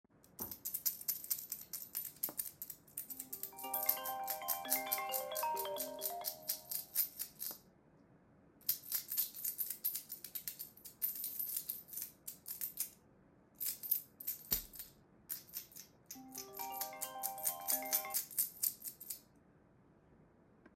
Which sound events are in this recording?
keys, phone ringing